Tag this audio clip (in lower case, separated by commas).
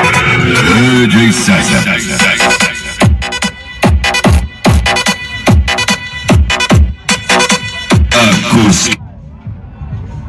speech, sound effect, music